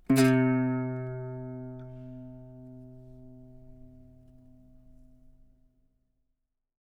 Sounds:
plucked string instrument
musical instrument
music
guitar

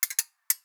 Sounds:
ratchet
mechanisms

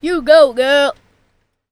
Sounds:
human voice
speech
kid speaking

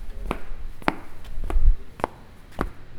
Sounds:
walk

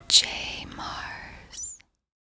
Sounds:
human voice
whispering

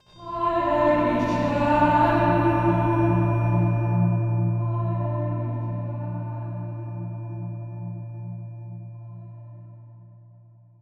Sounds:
human voice
music
musical instrument
singing

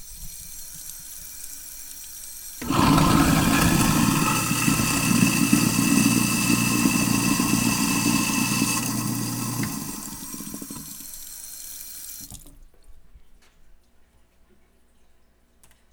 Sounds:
sink (filling or washing)
home sounds

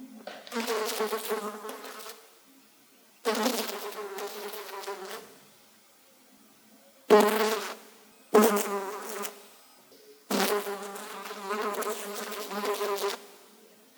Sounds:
wild animals
insect
animal

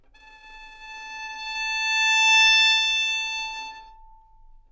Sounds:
musical instrument
bowed string instrument
music

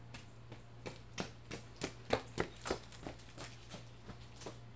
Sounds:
run

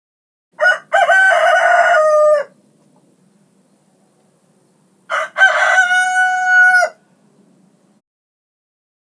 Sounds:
rooster
fowl
livestock
animal

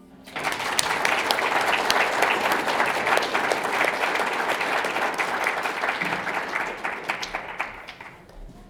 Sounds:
human group actions
crowd

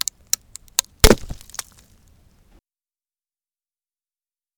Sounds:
crack

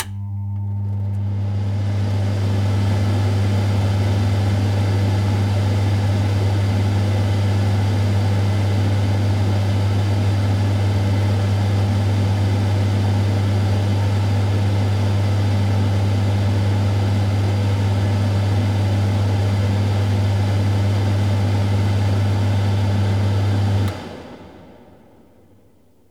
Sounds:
mechanical fan
mechanisms

